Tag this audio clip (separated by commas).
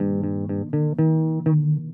Bass guitar, Plucked string instrument, Guitar, Music, Musical instrument